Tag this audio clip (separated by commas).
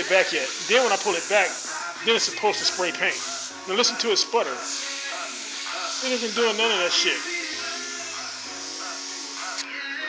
Speech, Music